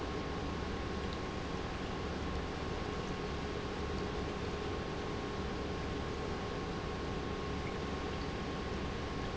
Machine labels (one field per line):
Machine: pump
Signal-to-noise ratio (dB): -6 dB